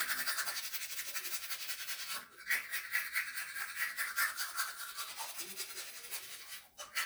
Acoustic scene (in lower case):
restroom